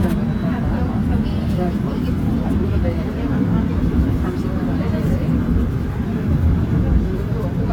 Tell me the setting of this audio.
subway train